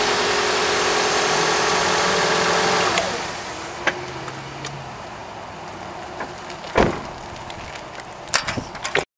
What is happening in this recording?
A motor running and a door shutting